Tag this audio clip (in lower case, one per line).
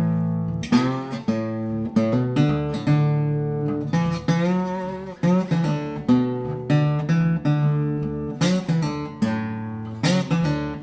music